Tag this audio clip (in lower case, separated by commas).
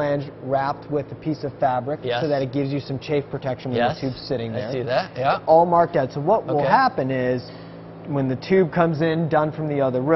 speech